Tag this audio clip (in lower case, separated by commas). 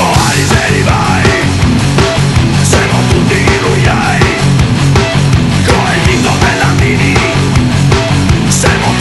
music